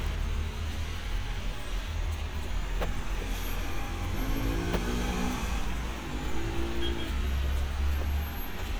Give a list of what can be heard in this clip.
engine of unclear size